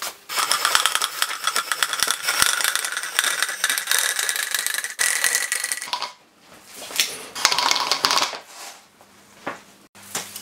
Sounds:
plastic bottle crushing

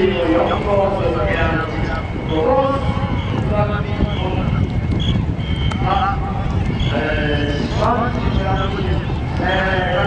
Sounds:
speech

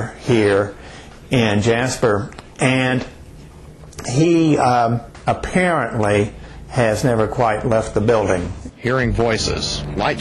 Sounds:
speech

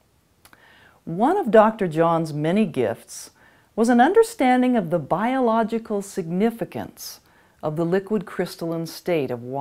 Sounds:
speech

